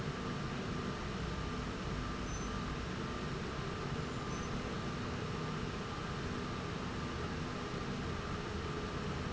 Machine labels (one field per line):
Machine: slide rail